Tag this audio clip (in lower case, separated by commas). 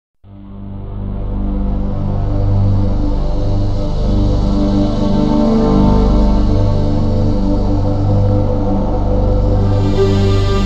music, soundtrack music